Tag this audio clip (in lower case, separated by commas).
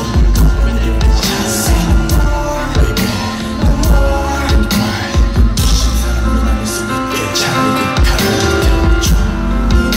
music